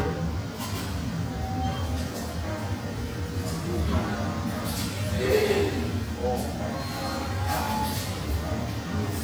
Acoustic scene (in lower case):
cafe